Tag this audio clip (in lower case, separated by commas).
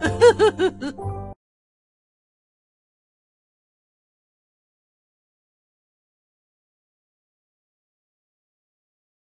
music